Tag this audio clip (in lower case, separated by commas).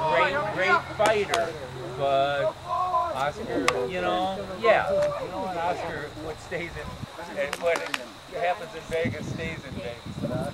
speech